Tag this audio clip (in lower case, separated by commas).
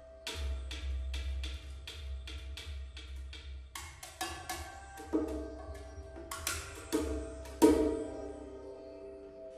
drum, percussion